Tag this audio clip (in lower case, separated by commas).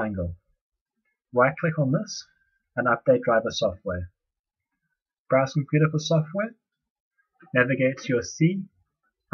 speech